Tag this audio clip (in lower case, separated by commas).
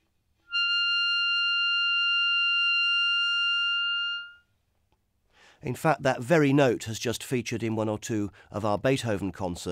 musical instrument, wind instrument, clarinet, music, speech